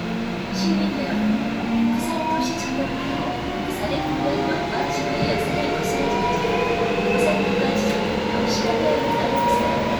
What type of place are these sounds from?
subway train